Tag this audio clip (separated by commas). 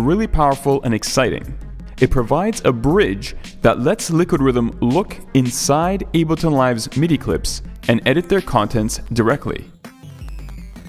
Music, Speech